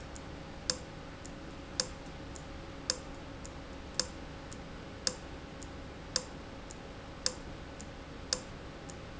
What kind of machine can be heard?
valve